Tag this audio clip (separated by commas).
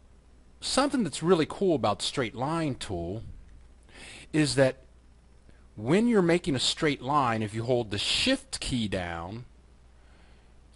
Speech